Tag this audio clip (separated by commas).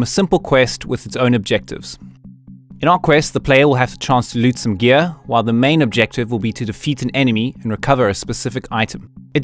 Speech, Music